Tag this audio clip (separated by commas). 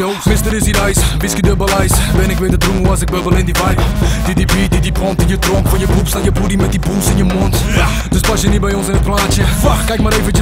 Music